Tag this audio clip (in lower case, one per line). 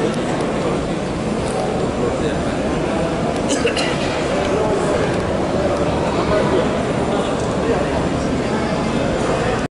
speech